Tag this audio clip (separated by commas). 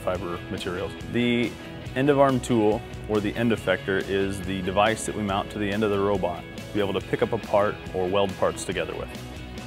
Music, Speech